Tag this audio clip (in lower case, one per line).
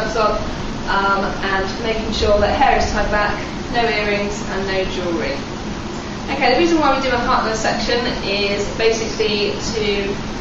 speech